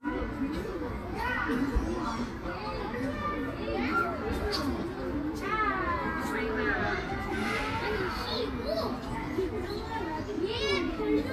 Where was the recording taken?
in a park